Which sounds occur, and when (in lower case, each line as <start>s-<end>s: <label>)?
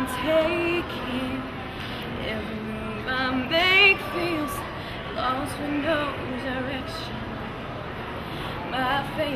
0.0s-0.4s: speech
0.0s-1.5s: female singing
0.0s-9.3s: speech babble
0.0s-9.3s: mechanisms
0.0s-9.3s: wind
1.6s-2.1s: speech
1.7s-2.0s: breathing
2.2s-4.7s: female singing
2.7s-3.2s: speech
4.7s-4.9s: breathing
5.2s-7.1s: female singing
6.8s-8.0s: speech
8.3s-8.6s: breathing
8.7s-9.3s: female singing